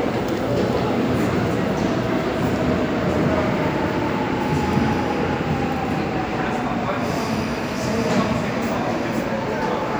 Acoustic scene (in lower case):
subway station